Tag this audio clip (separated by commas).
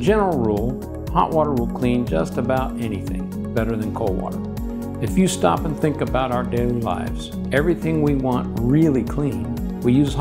Music, Speech